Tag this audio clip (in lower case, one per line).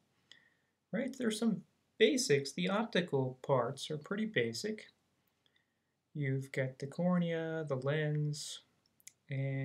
speech